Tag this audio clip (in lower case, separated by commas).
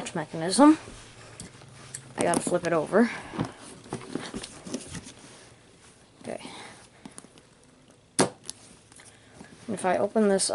speech